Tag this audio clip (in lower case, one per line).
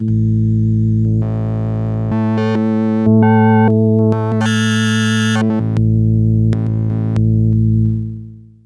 music
musical instrument
keyboard (musical)